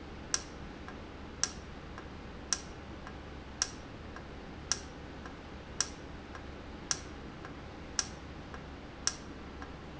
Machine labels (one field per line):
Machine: valve